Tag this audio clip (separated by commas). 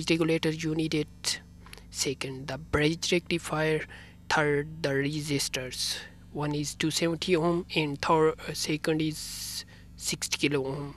Speech